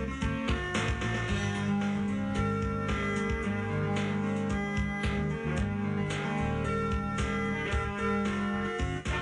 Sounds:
music, rhythm and blues, blues

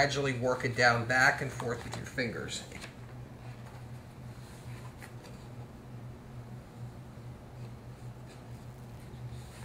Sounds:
inside a small room, speech

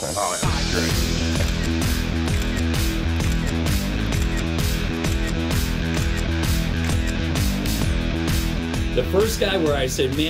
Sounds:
music, speech

